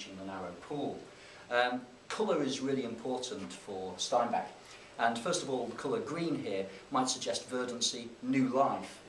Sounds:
speech

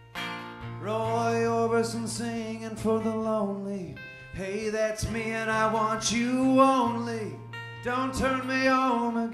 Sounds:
music

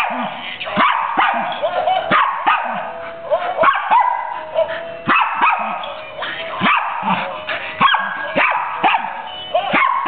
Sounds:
animal
dog
music
yip
pets
inside a small room

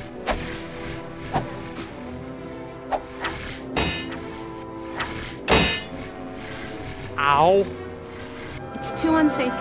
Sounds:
music
speech

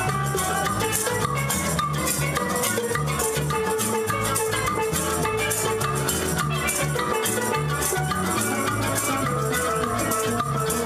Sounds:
drum kit
music of latin america
music
musical instrument
guitar
steelpan
drum

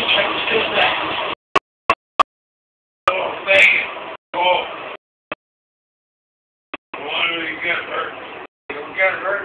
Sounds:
train
speech
vehicle

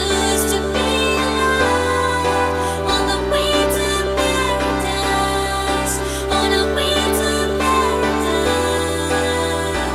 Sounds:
music

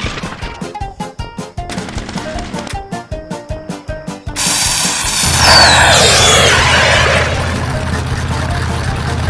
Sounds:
music

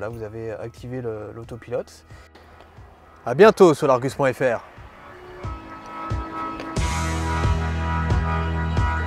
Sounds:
speech
music

